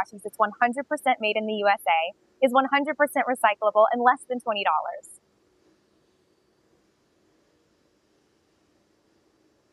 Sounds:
speech

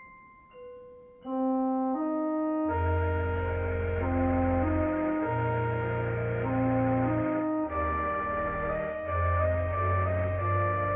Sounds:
music
ambient music

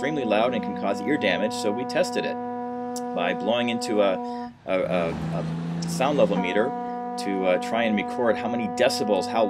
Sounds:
speech

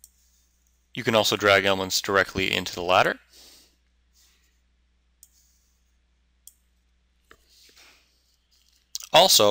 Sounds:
clicking
speech
inside a small room

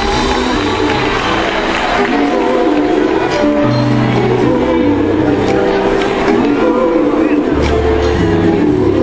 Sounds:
female singing
music

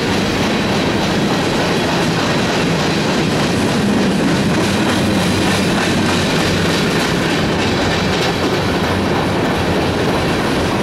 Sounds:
train horning

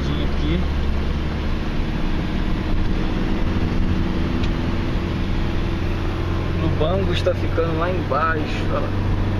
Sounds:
speech

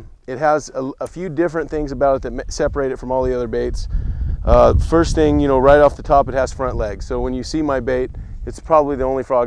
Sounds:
speech

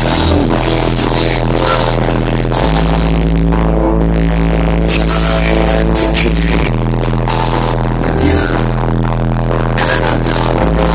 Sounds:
music

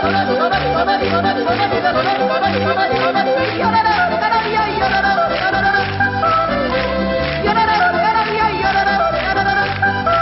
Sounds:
music
applause

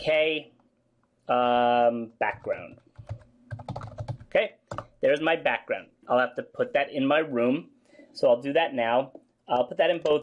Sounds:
speech

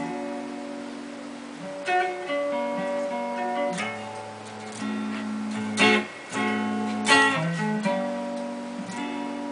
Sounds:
music

